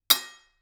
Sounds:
cutlery, home sounds, dishes, pots and pans

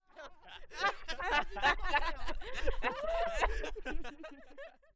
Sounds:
human voice, laughter

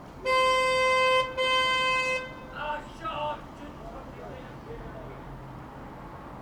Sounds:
car, vehicle, alarm, motor vehicle (road), vehicle horn

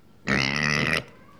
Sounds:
animal, livestock

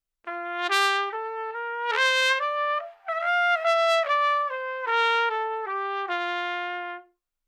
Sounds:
music, brass instrument, trumpet, musical instrument

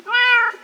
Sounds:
animal, pets, cat

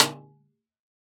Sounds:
drum, snare drum, musical instrument, percussion, music

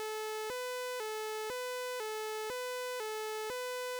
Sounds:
alarm, siren

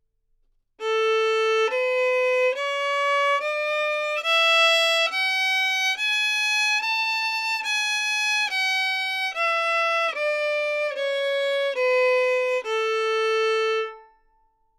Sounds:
musical instrument, music, bowed string instrument

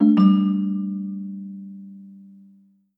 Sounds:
telephone, ringtone, alarm

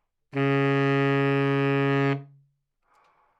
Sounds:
music, musical instrument, wind instrument

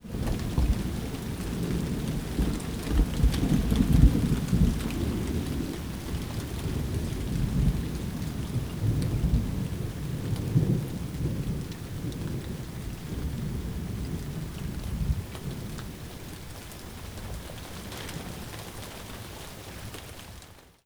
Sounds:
thunderstorm, thunder, rain, water

